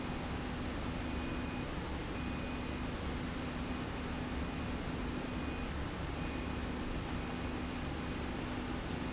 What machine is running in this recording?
slide rail